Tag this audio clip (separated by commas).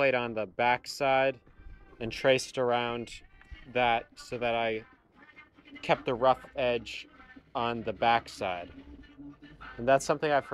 Music, Speech